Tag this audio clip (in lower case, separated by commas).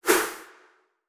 swoosh